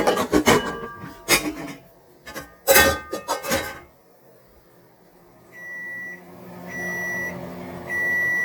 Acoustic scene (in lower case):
kitchen